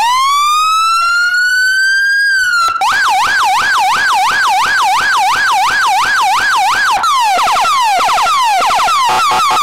Emergency vehicle siren operating